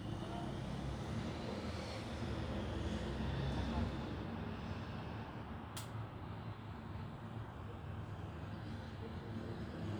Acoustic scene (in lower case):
residential area